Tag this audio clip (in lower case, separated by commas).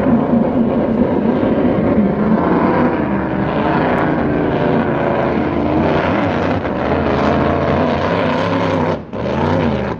vehicle, boat, speedboat